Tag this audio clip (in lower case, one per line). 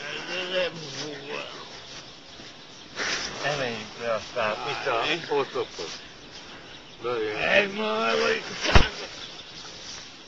speech